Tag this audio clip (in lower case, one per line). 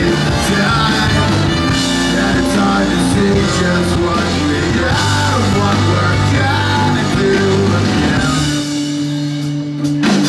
rock and roll
singing
music